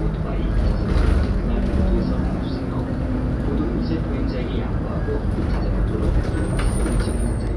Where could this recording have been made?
on a bus